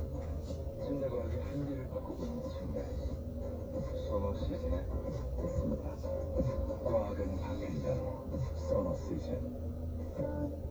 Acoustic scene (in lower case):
car